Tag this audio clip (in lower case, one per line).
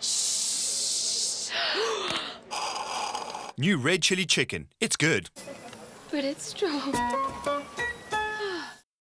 speech
music